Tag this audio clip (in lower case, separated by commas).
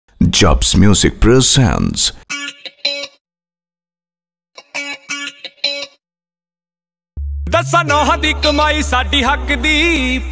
singing, speech, music